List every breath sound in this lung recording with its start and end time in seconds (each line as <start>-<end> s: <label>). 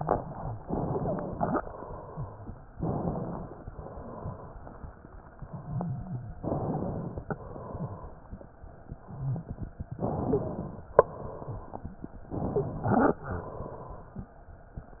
0.61-1.58 s: inhalation
0.95-1.37 s: wheeze
2.75-3.66 s: inhalation
3.66-4.61 s: exhalation
6.43-7.29 s: inhalation
7.29-8.29 s: exhalation
9.92-10.93 s: inhalation
10.27-10.55 s: wheeze
10.95-11.90 s: exhalation
12.30-13.24 s: inhalation
12.52-12.77 s: wheeze
13.28-14.15 s: exhalation